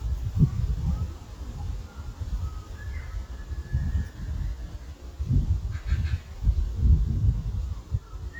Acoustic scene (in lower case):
park